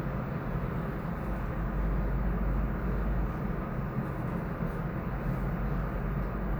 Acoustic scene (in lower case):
elevator